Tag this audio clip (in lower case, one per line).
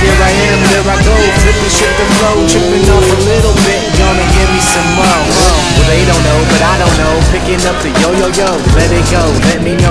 speech
music